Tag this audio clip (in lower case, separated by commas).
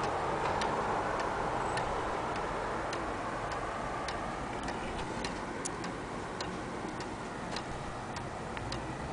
tick, tick-tock